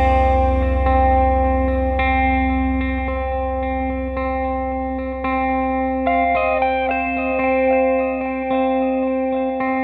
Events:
0.0s-9.8s: music

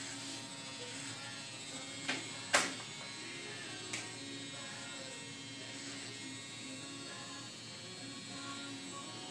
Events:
0.0s-9.3s: electric shaver
0.7s-9.3s: music
3.9s-4.0s: generic impact sounds
8.0s-9.3s: singing

